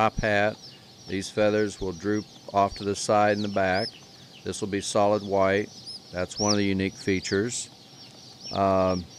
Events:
0.0s-0.5s: male speech
0.0s-9.1s: bird call
0.0s-9.1s: mechanisms
0.5s-0.6s: tick
0.6s-0.9s: breathing
1.0s-1.1s: tick
1.0s-2.2s: male speech
2.3s-2.5s: tick
2.4s-3.9s: male speech
3.9s-4.1s: tick
4.1s-4.3s: breathing
4.5s-5.7s: male speech
6.1s-7.6s: male speech
7.7s-7.8s: tick
8.0s-8.1s: tick
8.3s-8.4s: tick
8.5s-9.1s: male speech

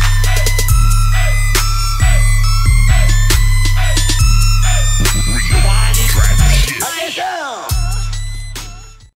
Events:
0.0s-9.1s: music
5.5s-7.5s: male singing

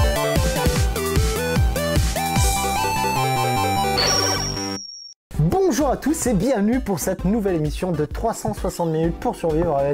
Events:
0.0s-4.7s: music
0.0s-5.1s: video game sound
4.0s-4.4s: sound effect
4.0s-5.1s: squeal
5.3s-9.9s: male speech
5.3s-9.9s: music
5.3s-9.9s: video game sound

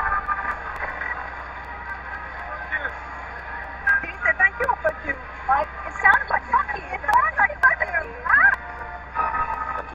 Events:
0.0s-9.8s: speech noise
0.0s-9.8s: music
2.5s-2.9s: man speaking
3.8s-8.6s: conversation
6.0s-8.5s: woman speaking

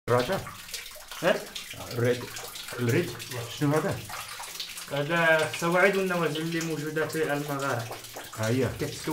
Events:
0.0s-9.1s: conversation
0.0s-9.1s: drip

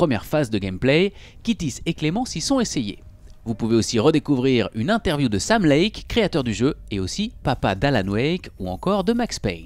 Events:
0.0s-1.1s: man speaking
0.0s-9.6s: mechanisms
1.1s-1.4s: breathing
1.4s-3.0s: man speaking
3.1s-3.4s: generic impact sounds
3.4s-6.7s: man speaking
6.9s-7.3s: man speaking
7.4s-9.6s: man speaking

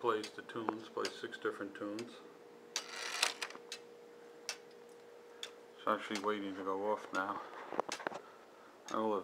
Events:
0.0s-2.0s: man speaking
0.0s-9.2s: background noise
0.2s-0.3s: tick
0.5s-0.7s: generic impact sounds
1.0s-1.2s: tick
1.9s-2.1s: tick
2.7s-3.6s: creak
2.7s-2.9s: tick
3.7s-3.8s: tick
4.4s-4.6s: tick
5.4s-5.5s: tick
5.8s-7.5s: man speaking
6.1s-6.3s: tick
7.1s-7.3s: tick
7.7s-8.2s: generic impact sounds
7.8s-8.0s: tick
8.9s-9.0s: tick

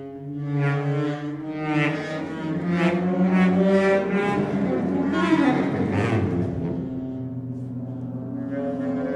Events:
0.0s-9.1s: music

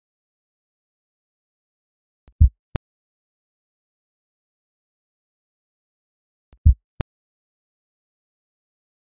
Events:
2.2s-2.3s: tick
2.4s-2.6s: heartbeat
2.7s-2.8s: tick
6.5s-6.6s: tick
6.6s-6.8s: heartbeat
6.9s-7.0s: tick

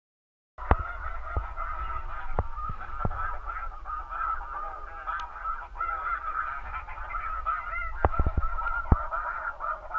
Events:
0.5s-9.9s: duck
0.5s-9.9s: wind noise (microphone)
5.1s-5.2s: tick

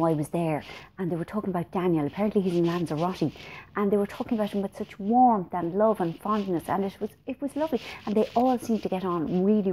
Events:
0.0s-0.8s: female speech
0.6s-0.9s: rub
0.7s-0.9s: breathing
1.0s-3.3s: female speech
2.1s-3.4s: rub
3.4s-3.7s: breathing
3.8s-7.1s: female speech
4.2s-4.9s: rub
5.9s-7.0s: rub
7.4s-7.9s: female speech
7.7s-9.7s: rub
7.8s-8.1s: breathing
8.0s-9.7s: female speech

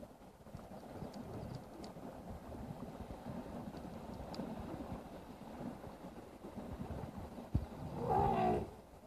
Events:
0.0s-9.0s: water
0.0s-9.0s: wind
0.5s-0.6s: tick
0.6s-1.5s: wind noise (microphone)
1.0s-1.1s: tick
1.5s-1.6s: tick
1.7s-5.1s: wind noise (microphone)
1.7s-1.8s: tick
3.7s-3.8s: tick
4.1s-4.1s: tick
4.3s-4.4s: tick
5.4s-6.2s: wind noise (microphone)
6.4s-7.9s: wind noise (microphone)
7.9s-8.6s: animal

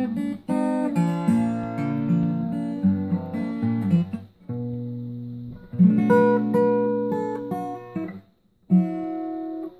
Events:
0.0s-8.2s: music
8.6s-9.7s: music

